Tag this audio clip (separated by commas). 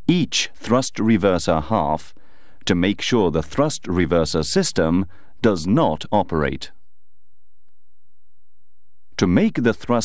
Speech